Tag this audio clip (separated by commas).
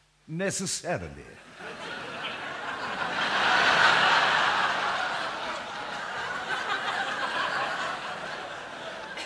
Speech